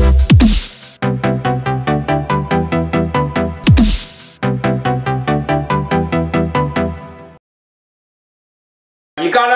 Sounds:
music, speech

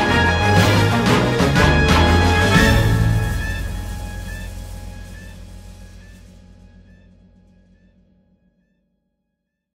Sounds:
music, theme music

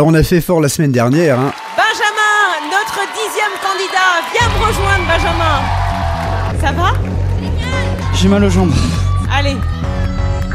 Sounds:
music, radio, speech

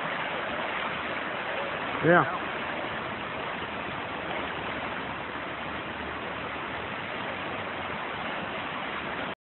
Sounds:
waterfall, speech

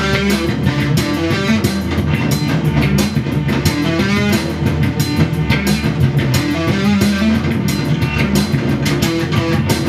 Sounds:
guitar, musical instrument, drum machine, music, bass guitar

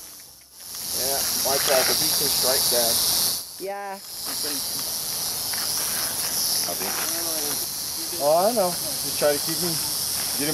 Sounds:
snake

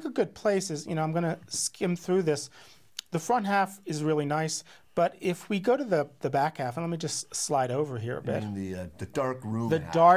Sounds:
speech

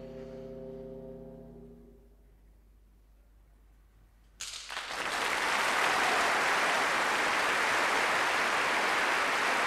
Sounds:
music, orchestra

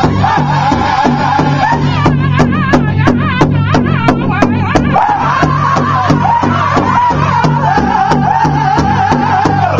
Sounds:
music

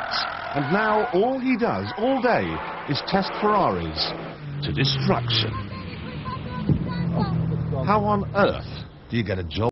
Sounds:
speech, medium engine (mid frequency), car, vehicle

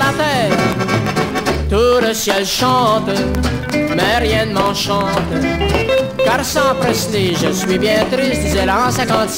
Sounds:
rock and roll, music

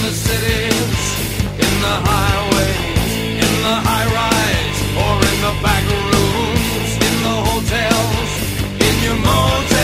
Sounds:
music

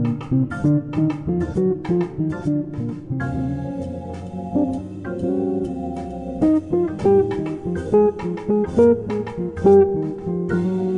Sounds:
plucked string instrument, music, acoustic guitar, strum, guitar, musical instrument, electric guitar

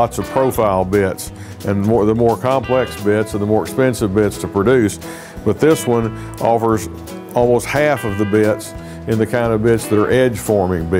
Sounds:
music, speech

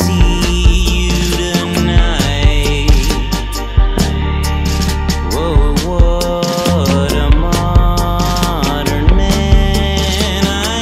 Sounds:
music

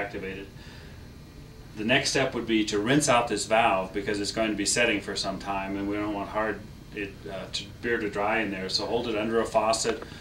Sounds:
speech

